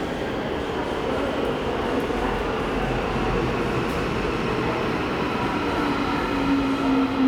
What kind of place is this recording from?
subway station